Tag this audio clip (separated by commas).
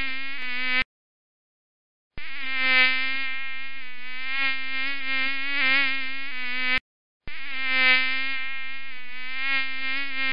mosquito buzzing